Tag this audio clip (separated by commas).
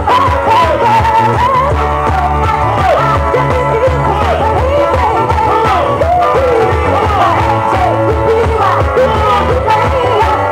Music